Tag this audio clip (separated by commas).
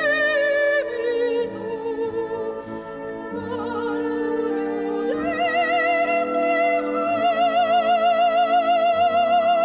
Music, Singing, Opera, Orchestra, Classical music